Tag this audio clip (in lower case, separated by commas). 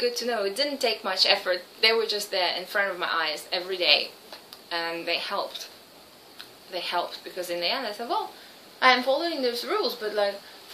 speech, inside a small room